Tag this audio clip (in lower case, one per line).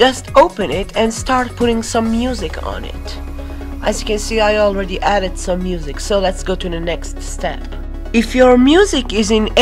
speech
music